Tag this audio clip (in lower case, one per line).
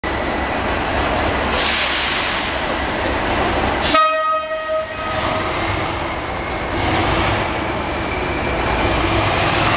rail transport
train horning
railroad car
train horn
train